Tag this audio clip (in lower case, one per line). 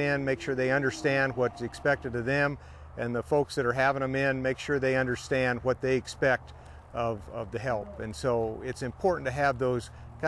speech